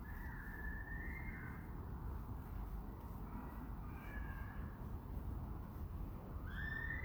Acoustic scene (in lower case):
residential area